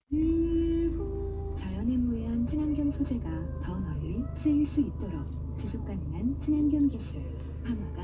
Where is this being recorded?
in a car